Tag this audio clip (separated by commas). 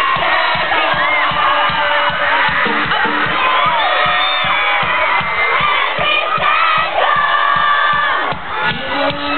Music, Musical instrument